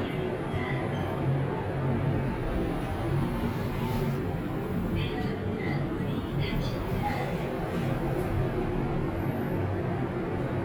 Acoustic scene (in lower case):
elevator